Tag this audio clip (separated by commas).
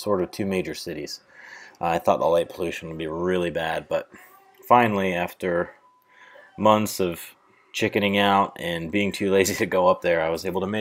Speech